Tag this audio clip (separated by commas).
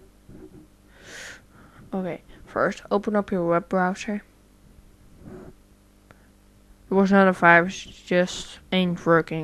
Speech